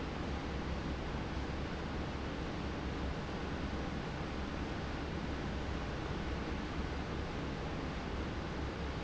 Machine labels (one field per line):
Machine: fan